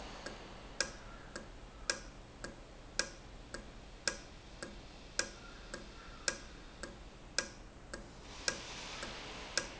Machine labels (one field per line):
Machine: valve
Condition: normal